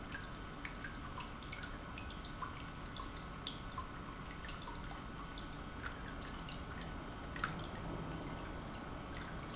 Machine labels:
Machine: pump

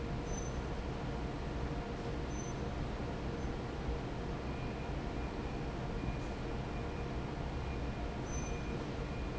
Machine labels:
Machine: fan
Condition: normal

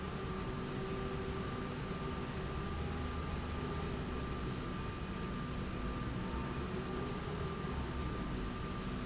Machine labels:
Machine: slide rail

